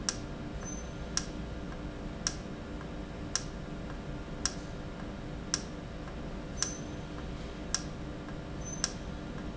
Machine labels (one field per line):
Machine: valve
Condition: normal